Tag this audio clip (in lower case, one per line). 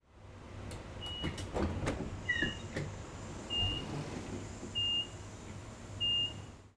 rail transport
vehicle
train
sliding door
door
home sounds